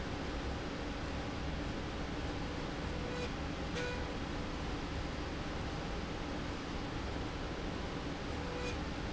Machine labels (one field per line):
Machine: slide rail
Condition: normal